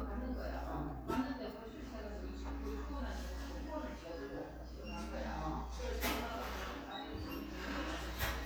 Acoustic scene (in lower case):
crowded indoor space